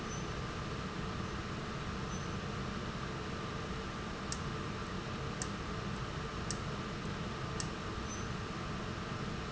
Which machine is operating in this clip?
valve